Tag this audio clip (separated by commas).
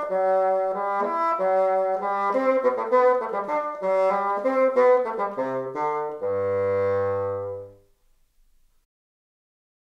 playing bassoon